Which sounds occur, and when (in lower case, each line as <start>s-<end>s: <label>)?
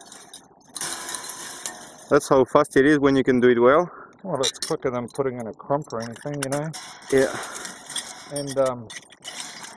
0.0s-0.4s: generic impact sounds
0.0s-9.7s: wind
0.7s-2.0s: generic impact sounds
1.6s-1.7s: tick
2.1s-3.8s: male speech
3.9s-4.1s: breathing
4.2s-6.7s: male speech
4.4s-4.7s: generic impact sounds
5.8s-6.5s: generic impact sounds
6.7s-8.7s: generic impact sounds
7.1s-7.4s: male speech
8.3s-8.8s: male speech
8.9s-9.7s: generic impact sounds